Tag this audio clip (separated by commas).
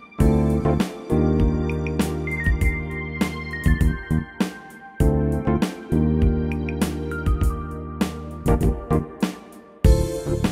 Music